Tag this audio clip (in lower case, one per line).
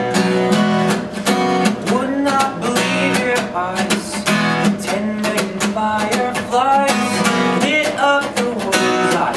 music